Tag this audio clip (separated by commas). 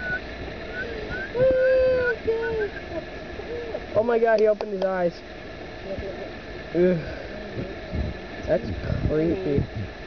Bird, Speech